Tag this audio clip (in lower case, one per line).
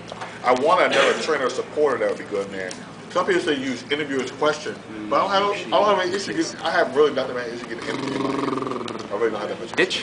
speech